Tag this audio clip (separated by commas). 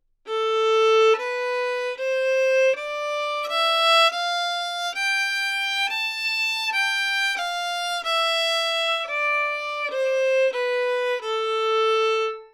Music, Bowed string instrument, Musical instrument